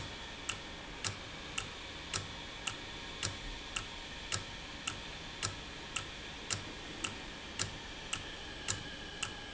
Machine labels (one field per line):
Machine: valve